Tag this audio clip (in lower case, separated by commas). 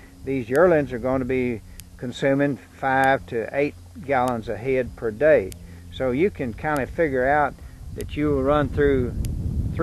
speech, outside, rural or natural